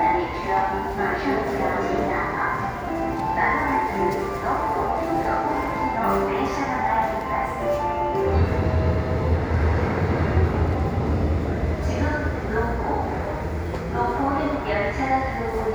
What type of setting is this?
subway station